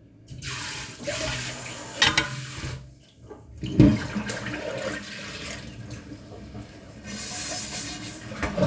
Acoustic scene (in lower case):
kitchen